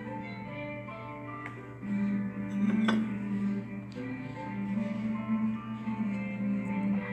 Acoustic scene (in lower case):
cafe